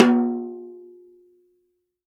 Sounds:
musical instrument, drum, music, percussion

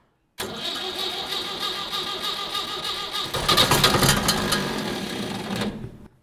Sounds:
engine

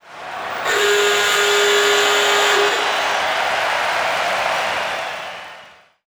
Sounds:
crowd, human group actions, alarm

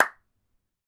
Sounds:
hands, clapping

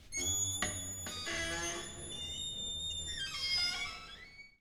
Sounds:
home sounds, squeak, door

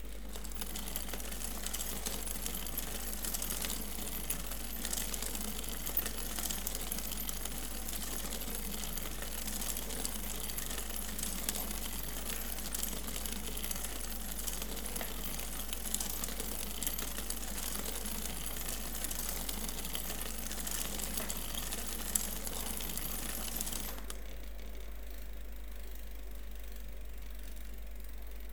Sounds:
vehicle, bicycle, mechanisms

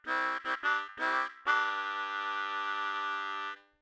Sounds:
musical instrument, music, harmonica

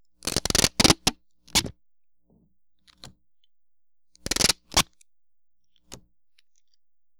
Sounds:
home sounds, duct tape

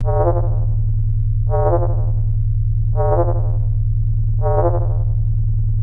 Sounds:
alarm

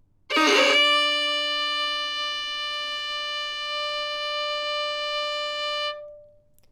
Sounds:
music, bowed string instrument, musical instrument

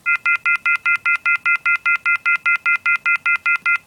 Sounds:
telephone, alarm

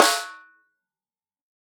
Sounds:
musical instrument, percussion, music, drum, snare drum

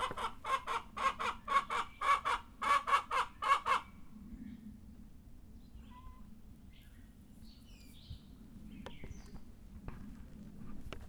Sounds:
livestock, animal, chicken, fowl

